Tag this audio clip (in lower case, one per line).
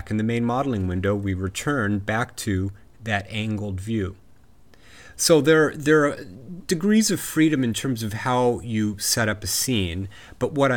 speech